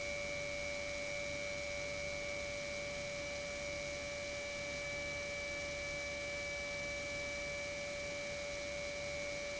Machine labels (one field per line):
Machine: pump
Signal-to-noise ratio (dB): 6 dB